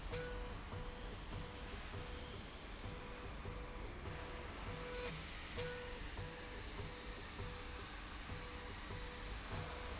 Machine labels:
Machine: slide rail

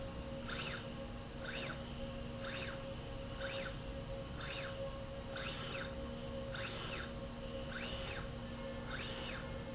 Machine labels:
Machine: slide rail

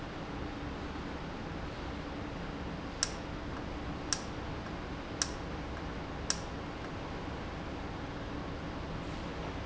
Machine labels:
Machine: valve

